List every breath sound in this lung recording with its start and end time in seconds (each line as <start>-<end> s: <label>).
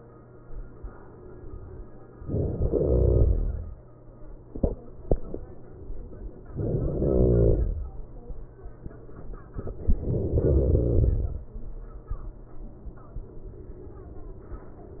2.30-3.31 s: inhalation
6.57-7.70 s: inhalation
9.99-11.05 s: inhalation